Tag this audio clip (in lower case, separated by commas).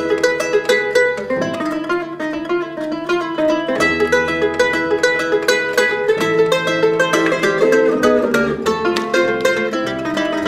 cello, pizzicato